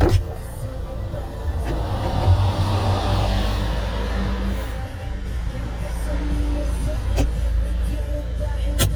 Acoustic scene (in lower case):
car